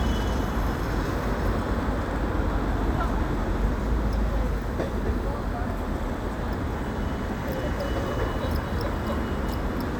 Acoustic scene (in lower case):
street